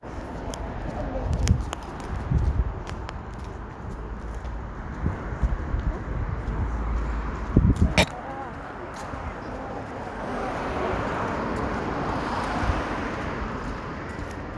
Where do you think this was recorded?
on a street